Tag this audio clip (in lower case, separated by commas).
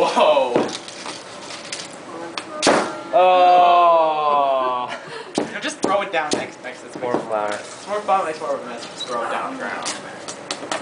speech